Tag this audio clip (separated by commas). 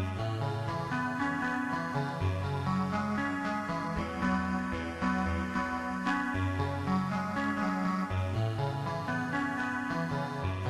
Music